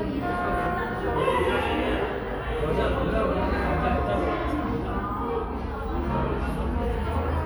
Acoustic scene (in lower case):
crowded indoor space